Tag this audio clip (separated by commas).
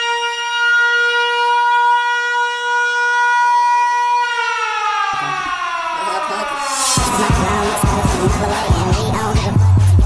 Siren, Music